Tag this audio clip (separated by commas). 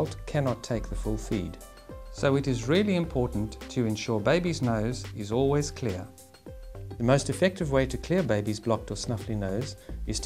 Speech, Music